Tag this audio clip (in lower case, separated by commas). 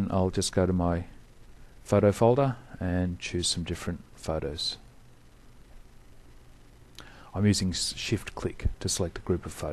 speech